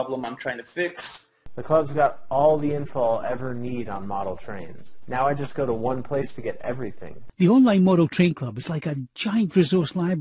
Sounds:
Speech

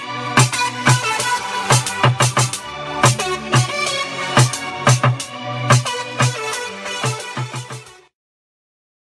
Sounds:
Music, Hip hop music

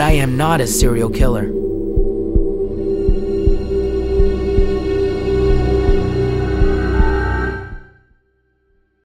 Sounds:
Scary music, Speech, Music

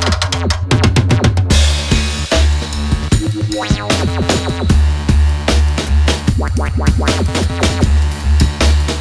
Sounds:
Snare drum, Percussion, Rimshot, Drum roll, Bass drum, Drum kit, Drum

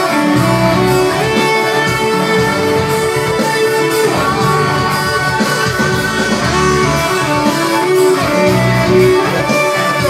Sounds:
Acoustic guitar, Guitar, Musical instrument, Music, Plucked string instrument

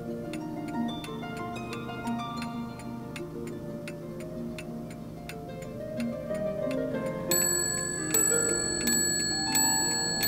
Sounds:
Tick-tock, Music

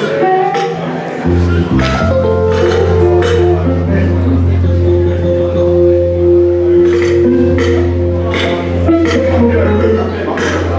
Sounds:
Speech, Music, Background music

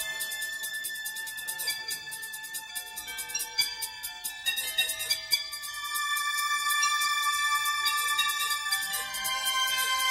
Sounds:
Music

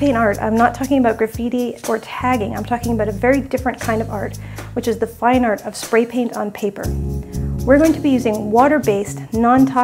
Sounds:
Speech, Music

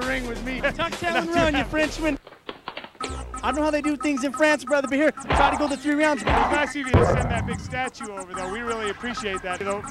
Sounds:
Music, smack, Speech

